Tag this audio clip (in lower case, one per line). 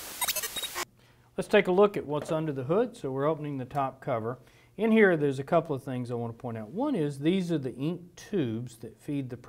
speech